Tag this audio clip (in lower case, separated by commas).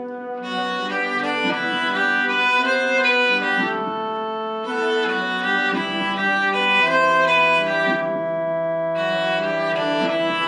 fiddle, musical instrument, music